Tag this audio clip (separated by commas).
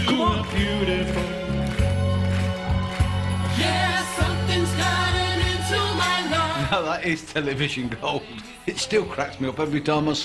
Speech, Music